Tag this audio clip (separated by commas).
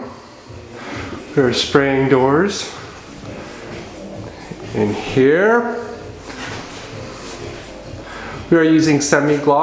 Speech